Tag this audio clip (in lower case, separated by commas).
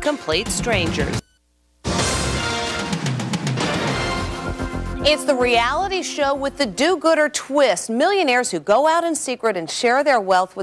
music, speech